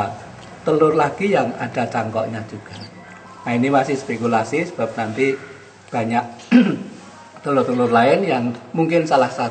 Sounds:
Music, Speech

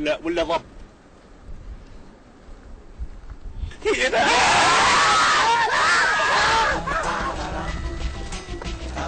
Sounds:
Speech, Music

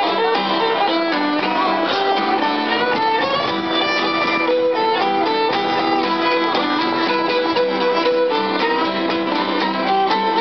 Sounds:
Music, Musical instrument, Violin

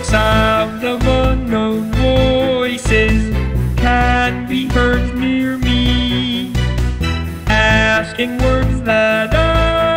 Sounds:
Music

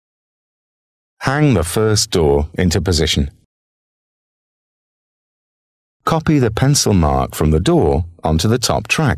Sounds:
Speech, monologue, Speech synthesizer

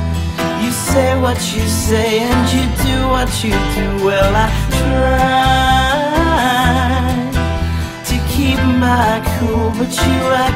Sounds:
Independent music, Happy music, Music

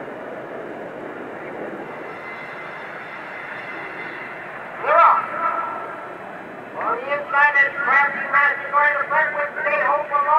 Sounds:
Speech

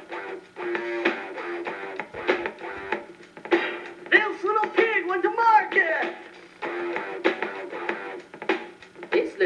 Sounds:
Music

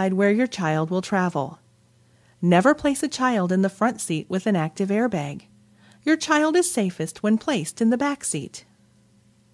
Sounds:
Speech

